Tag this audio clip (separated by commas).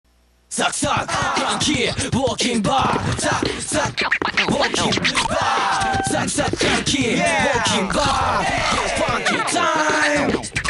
Music